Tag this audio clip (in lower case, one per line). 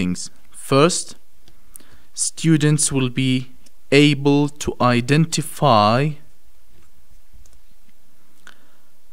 speech